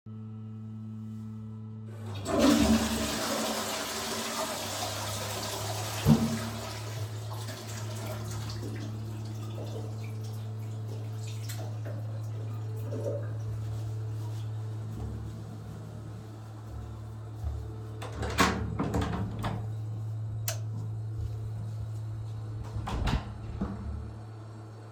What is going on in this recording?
I flushed the toilet, wash my hands, opened the door, turned the light off, walked out and closed the door